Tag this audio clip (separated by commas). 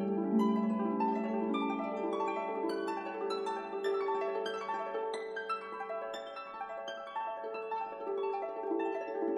Music